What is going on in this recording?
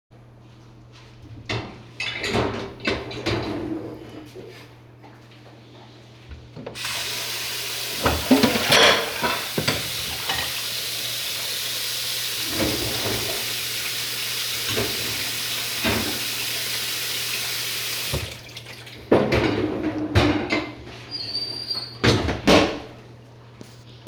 I open the dishwasher, I turn on the water in my sink, take a dirty plate from the sink and rinse it with that water. I put that plate in the dishwasher, I close the dishwasher.